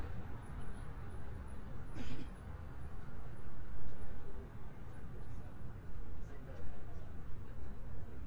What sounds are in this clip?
person or small group talking